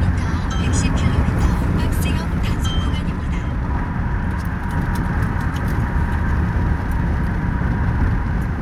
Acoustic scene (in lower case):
car